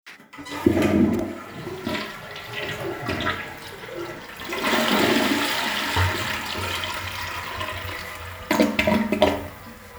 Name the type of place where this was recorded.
restroom